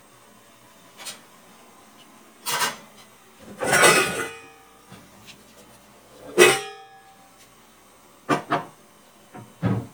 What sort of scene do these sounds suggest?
kitchen